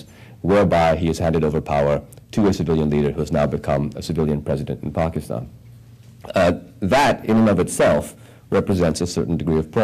A man is speaking